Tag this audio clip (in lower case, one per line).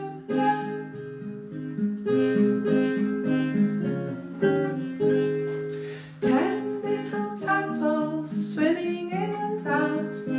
music
traditional music